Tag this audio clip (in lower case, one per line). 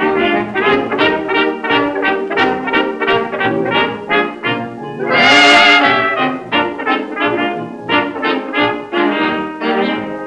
music
brass instrument